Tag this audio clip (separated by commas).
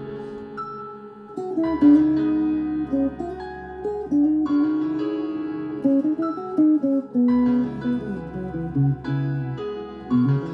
Music, Plucked string instrument, Strum, Guitar, Musical instrument